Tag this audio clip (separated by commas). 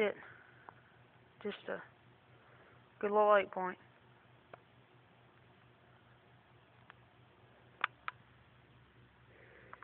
Speech